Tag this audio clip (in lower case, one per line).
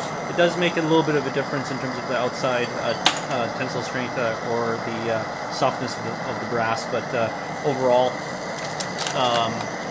inside a small room
speech